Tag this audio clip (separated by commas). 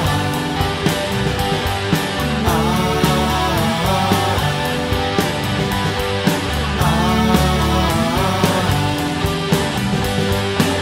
Progressive rock, Music